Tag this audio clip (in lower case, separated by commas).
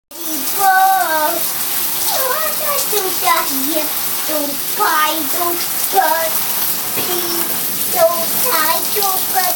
inside a small room